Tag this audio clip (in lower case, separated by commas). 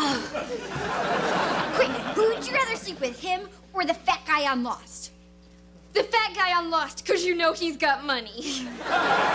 speech